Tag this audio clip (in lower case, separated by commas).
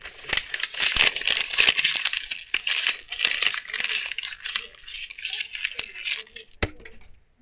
crumpling